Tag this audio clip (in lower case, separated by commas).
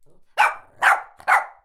bark, pets, dog, animal